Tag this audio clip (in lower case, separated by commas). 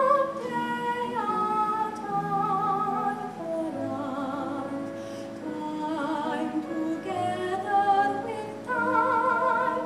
synthetic singing, music